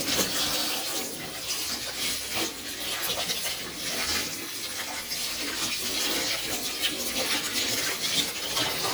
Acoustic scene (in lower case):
kitchen